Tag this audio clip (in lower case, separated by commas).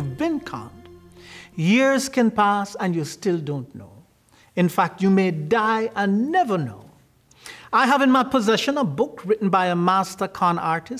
speech, music